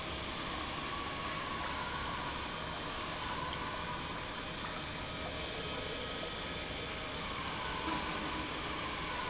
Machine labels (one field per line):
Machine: pump